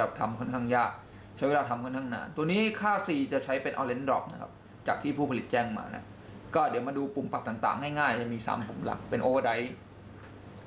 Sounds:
speech

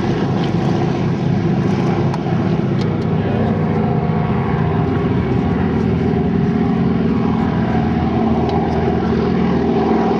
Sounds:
outside, urban or man-made
aircraft
fixed-wing aircraft
airscrew
vehicle

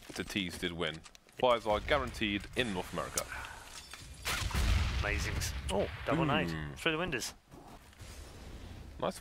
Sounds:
speech

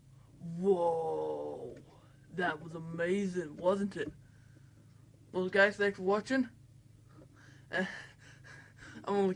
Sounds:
speech

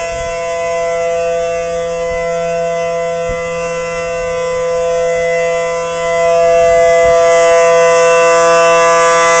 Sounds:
civil defense siren

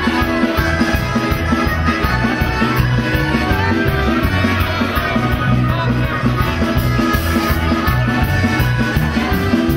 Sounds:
music

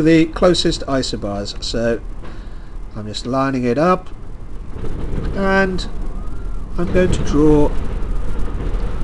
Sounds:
speech

